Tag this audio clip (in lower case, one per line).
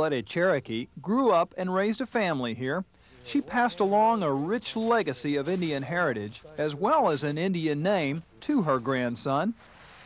speech